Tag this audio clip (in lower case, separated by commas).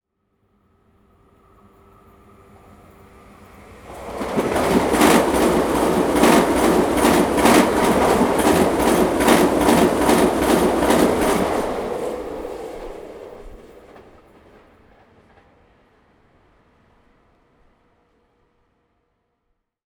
vehicle, rail transport, train